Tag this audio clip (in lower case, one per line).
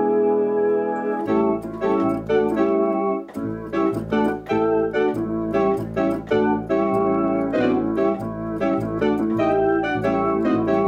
electronic organ
organ